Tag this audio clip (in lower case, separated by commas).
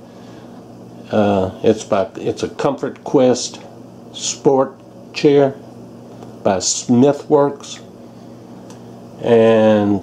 speech